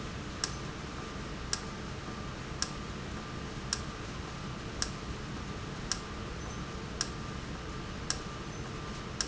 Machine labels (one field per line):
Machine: valve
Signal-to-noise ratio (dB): -6 dB